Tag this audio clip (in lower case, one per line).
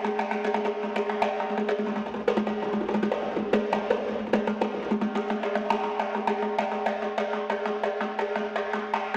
playing timbales